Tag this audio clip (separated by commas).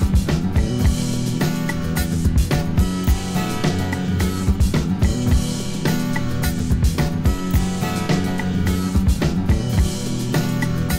Music